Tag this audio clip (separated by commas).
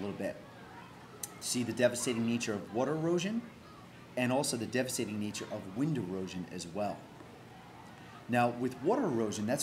Speech